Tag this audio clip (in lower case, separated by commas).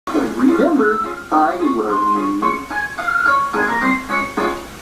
speech, soundtrack music, music